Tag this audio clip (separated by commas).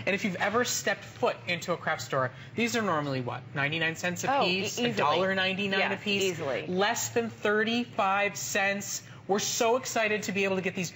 Speech